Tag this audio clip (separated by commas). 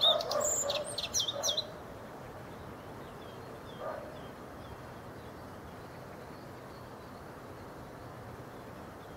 Animal, tweet, Bird